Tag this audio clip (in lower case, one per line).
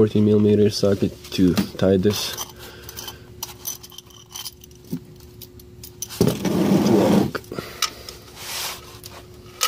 speech
rattle